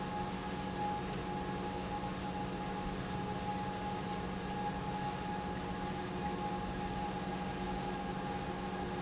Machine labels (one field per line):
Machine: pump